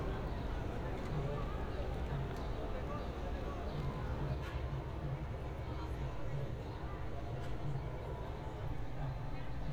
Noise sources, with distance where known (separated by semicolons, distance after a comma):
unidentified human voice, far